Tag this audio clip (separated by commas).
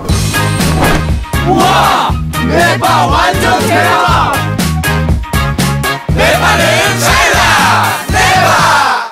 Music, Speech